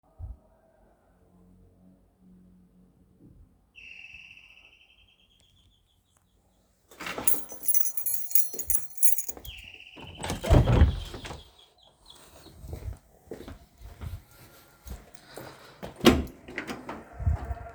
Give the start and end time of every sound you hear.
[3.72, 6.93] bell ringing
[6.97, 9.45] keys
[8.48, 10.20] footsteps
[9.44, 13.01] bell ringing
[10.12, 11.47] door
[12.66, 16.00] footsteps
[15.98, 17.11] door

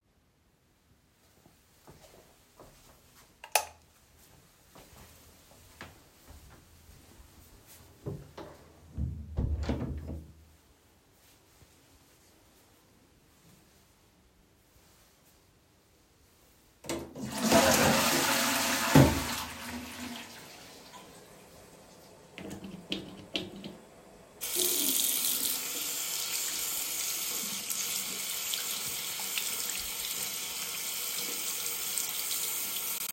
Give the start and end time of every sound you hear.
[1.71, 3.21] footsteps
[3.33, 3.87] light switch
[5.45, 6.83] footsteps
[8.05, 10.68] door
[16.84, 20.49] toilet flushing
[24.41, 33.13] running water

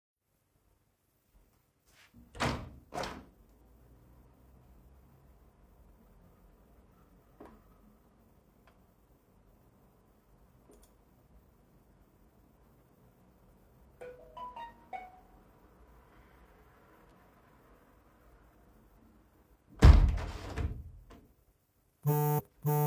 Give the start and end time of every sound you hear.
[2.22, 3.35] window
[13.93, 15.22] phone ringing
[19.64, 21.02] window
[22.01, 22.87] phone ringing

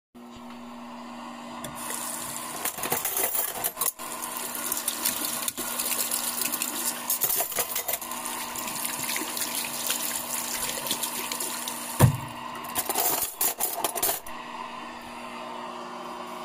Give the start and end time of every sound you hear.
[0.01, 16.45] microwave
[1.65, 12.37] running water
[2.59, 8.16] cutlery and dishes
[12.66, 14.40] cutlery and dishes

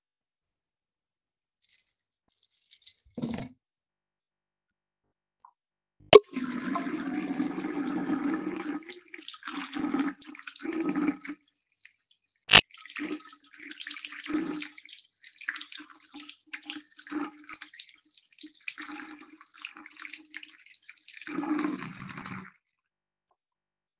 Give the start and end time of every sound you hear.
[1.57, 3.58] keys
[6.09, 22.73] running water

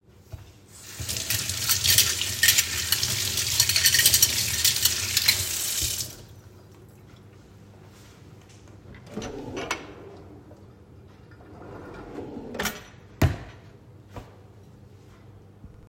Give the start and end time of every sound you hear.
[0.71, 6.26] running water
[1.30, 5.63] cutlery and dishes
[8.93, 10.64] wardrobe or drawer
[9.13, 10.21] cutlery and dishes
[11.27, 13.68] wardrobe or drawer
[12.51, 12.96] cutlery and dishes

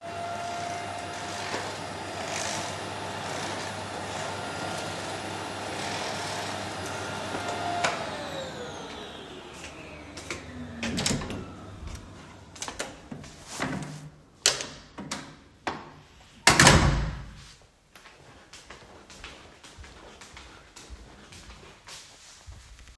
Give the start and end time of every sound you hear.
[0.00, 13.45] vacuum cleaner
[9.56, 10.79] footsteps
[10.76, 12.16] door
[12.35, 14.17] footsteps
[14.40, 17.71] door
[17.38, 22.97] footsteps

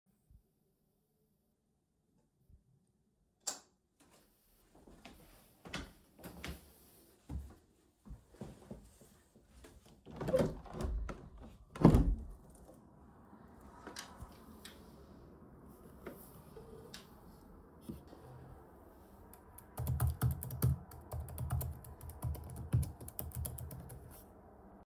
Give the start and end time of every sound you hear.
[3.34, 3.79] light switch
[4.92, 9.79] footsteps
[10.08, 12.24] wardrobe or drawer
[10.11, 12.45] window
[19.67, 24.85] keyboard typing

